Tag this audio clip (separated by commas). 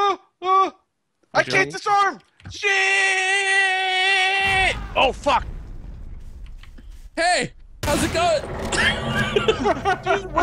people screaming, Screaming